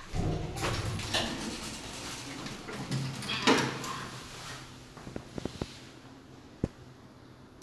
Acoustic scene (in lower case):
elevator